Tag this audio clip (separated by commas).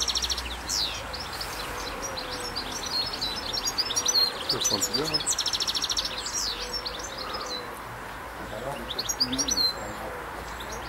Speech